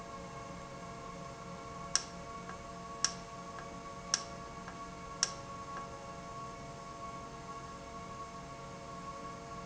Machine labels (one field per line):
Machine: valve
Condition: normal